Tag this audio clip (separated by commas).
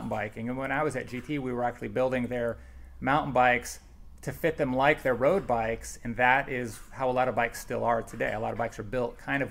Speech